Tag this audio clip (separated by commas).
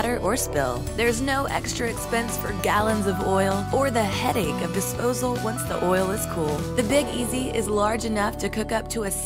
Music, Speech